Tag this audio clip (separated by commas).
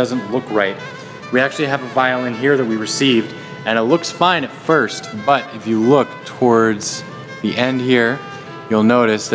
Musical instrument, Violin, Speech, Music